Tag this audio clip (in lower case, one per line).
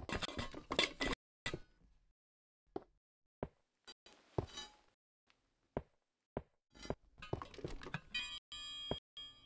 inside a small room